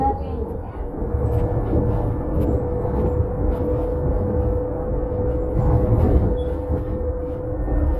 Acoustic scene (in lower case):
bus